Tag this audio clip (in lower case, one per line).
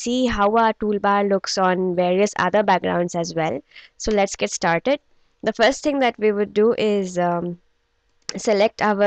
speech